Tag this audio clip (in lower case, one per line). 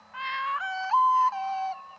animal
singing
bird
human voice
wild animals
bird vocalization